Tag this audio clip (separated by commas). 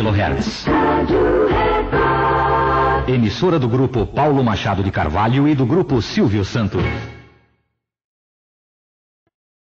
Music, Speech